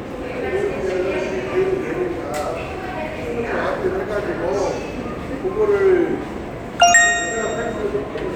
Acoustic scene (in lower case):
subway station